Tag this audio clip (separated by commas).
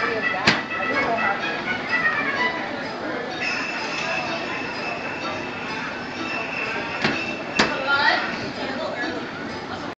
Speech, Music